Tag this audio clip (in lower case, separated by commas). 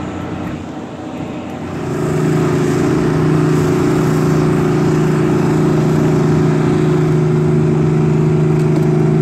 motorboat, water vehicle